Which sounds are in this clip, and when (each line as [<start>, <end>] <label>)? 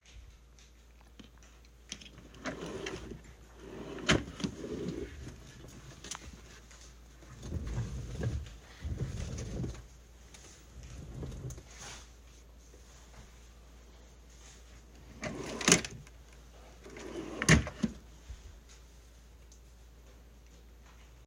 [2.38, 5.28] wardrobe or drawer
[15.18, 18.01] wardrobe or drawer